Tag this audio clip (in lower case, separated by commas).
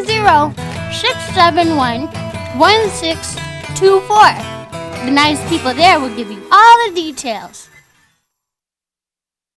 music, speech